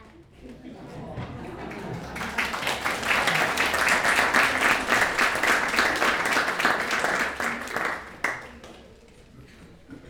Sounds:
human group actions
applause

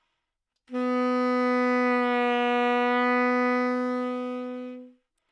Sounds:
music
wind instrument
musical instrument

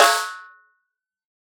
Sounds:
snare drum
percussion
music
musical instrument
drum

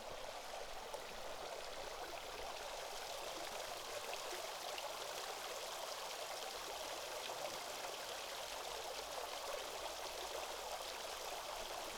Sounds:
water
stream

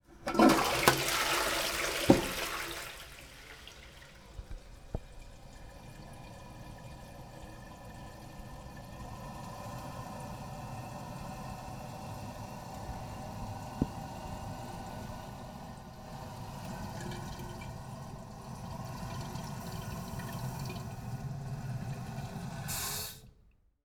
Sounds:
domestic sounds
toilet flush

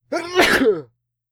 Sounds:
respiratory sounds
sneeze

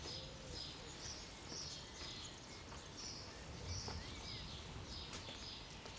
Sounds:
bird
animal
wild animals

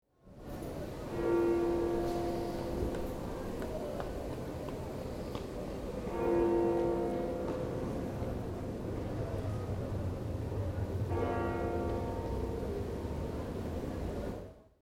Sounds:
church bell
bell

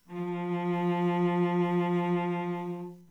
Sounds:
music
bowed string instrument
musical instrument

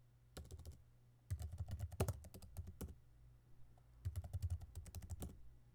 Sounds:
domestic sounds
typing
computer keyboard

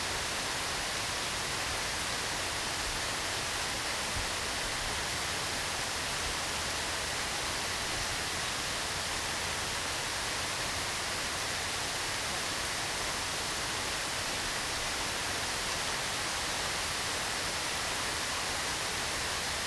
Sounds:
rain
water

